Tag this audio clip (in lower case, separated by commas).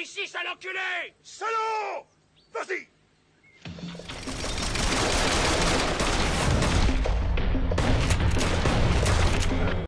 music, speech